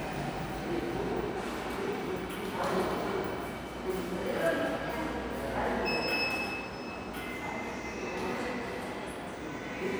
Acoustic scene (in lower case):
subway station